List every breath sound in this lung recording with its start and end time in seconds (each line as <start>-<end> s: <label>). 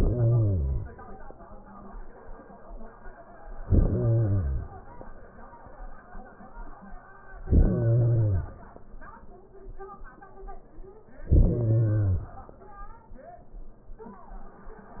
0.00-0.96 s: inhalation
3.50-4.84 s: inhalation
7.35-8.69 s: inhalation
11.15-12.41 s: inhalation